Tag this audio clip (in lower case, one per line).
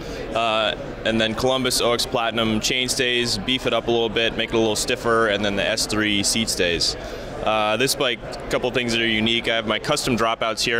speech